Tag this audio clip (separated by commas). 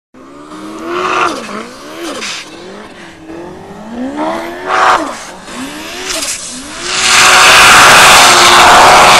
Vehicle